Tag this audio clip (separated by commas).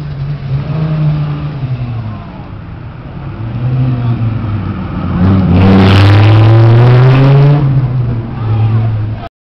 Speech